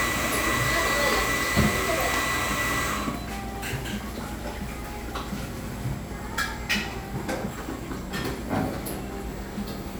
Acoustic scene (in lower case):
cafe